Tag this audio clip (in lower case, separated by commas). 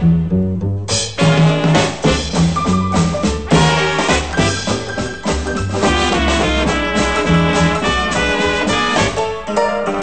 music, steelpan